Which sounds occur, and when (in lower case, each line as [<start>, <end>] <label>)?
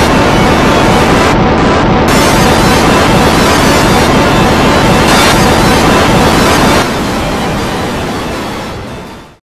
[0.01, 9.38] sound effect